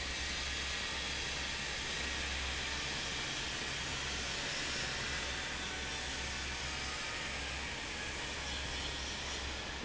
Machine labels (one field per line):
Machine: fan